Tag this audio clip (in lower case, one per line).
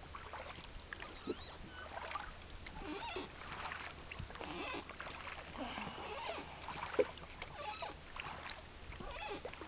vehicle
boat